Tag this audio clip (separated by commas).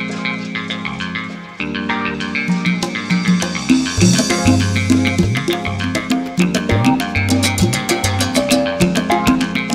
Tabla, Percussion, Drum